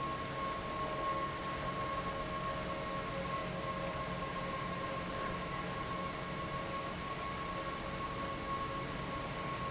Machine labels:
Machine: fan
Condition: abnormal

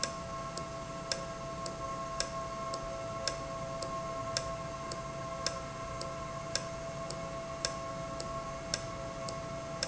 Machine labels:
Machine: valve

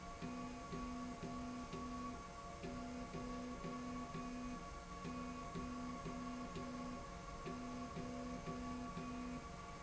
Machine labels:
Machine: slide rail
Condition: normal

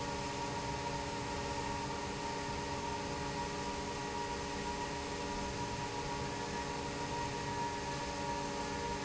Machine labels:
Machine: fan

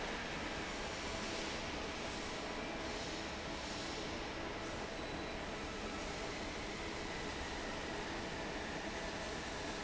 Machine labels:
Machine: fan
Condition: normal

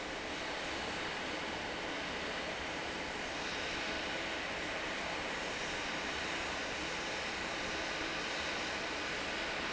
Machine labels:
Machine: fan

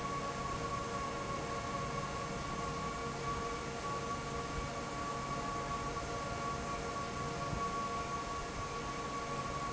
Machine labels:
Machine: fan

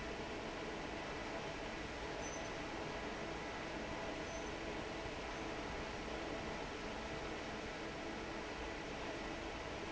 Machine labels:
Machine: fan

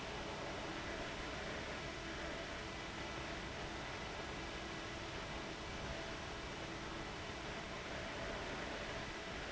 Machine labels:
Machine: fan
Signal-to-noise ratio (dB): 6 dB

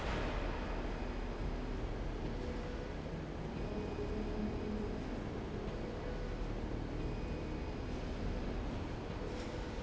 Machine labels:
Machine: slide rail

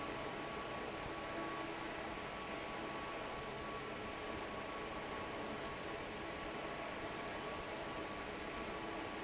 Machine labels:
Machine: fan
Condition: normal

